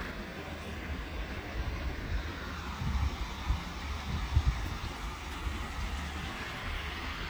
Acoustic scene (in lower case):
park